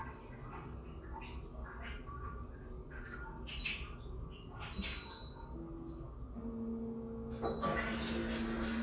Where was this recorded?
in a restroom